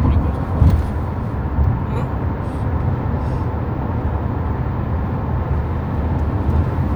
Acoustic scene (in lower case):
car